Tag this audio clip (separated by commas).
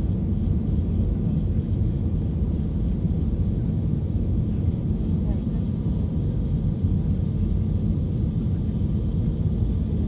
Speech